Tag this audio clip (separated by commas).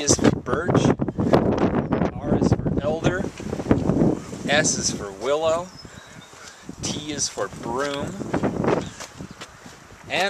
Speech, outside, rural or natural